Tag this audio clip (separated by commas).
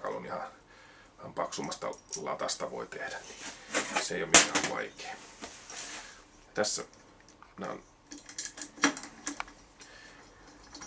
Speech